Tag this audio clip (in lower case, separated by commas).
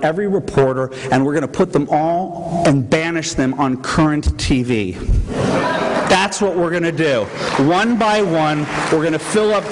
speech, man speaking